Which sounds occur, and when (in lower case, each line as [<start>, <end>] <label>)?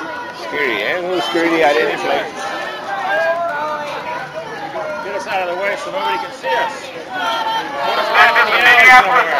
[0.00, 9.35] background noise
[0.00, 9.35] speech babble
[0.23, 0.33] tick